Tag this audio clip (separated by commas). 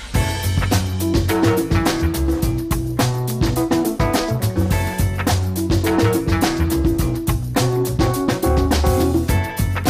Electronic music, Music, Techno